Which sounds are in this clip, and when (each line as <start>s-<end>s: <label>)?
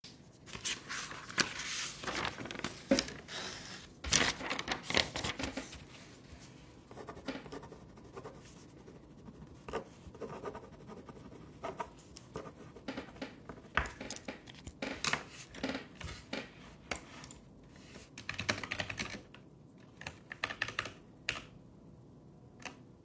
18.1s-21.5s: keyboard typing
22.6s-22.8s: keyboard typing